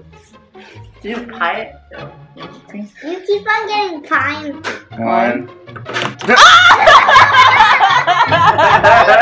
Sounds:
people slapping

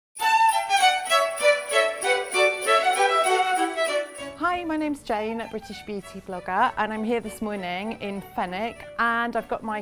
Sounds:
Speech, Music, Violin

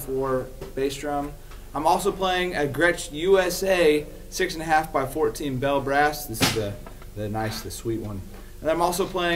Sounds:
Music, Speech

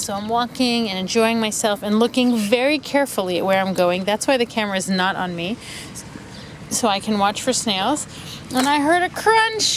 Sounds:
Speech, Bird

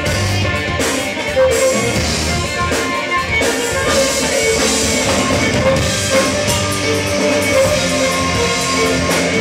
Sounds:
Bowed string instrument, Violin

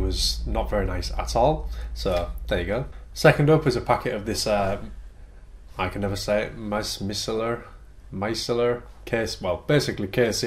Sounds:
Speech

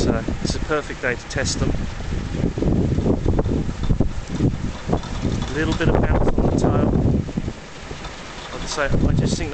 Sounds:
Wind noise (microphone), Wind

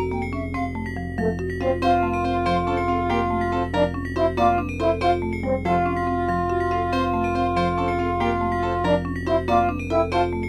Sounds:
Background music, Music

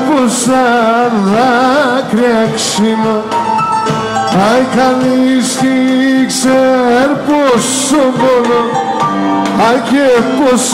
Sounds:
Singing, Folk music

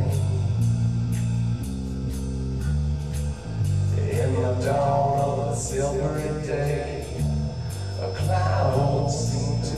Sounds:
Music

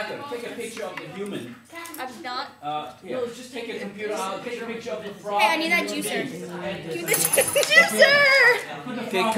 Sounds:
Speech

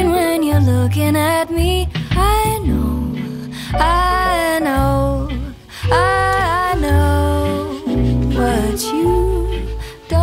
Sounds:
Music, Tender music

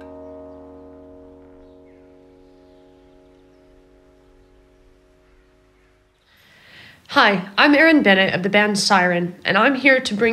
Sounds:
Speech

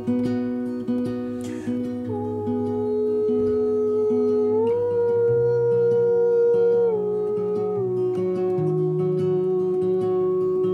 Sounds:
Music, Acoustic guitar

